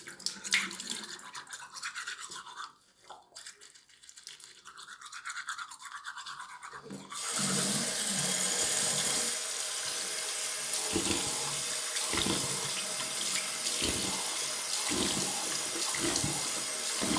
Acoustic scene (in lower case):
restroom